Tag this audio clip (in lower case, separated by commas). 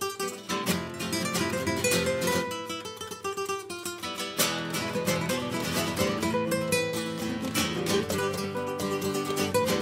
music, flamenco